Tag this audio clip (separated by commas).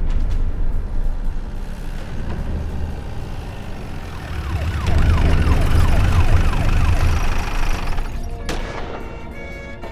outside, urban or man-made